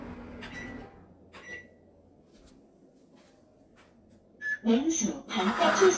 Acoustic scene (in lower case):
kitchen